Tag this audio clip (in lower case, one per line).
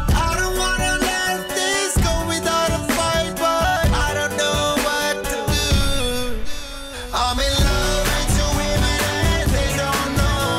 happy music
pop music
music